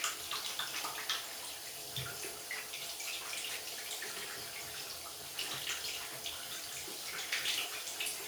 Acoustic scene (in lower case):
restroom